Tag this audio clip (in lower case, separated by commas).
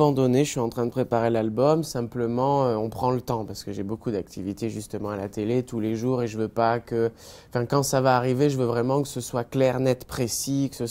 speech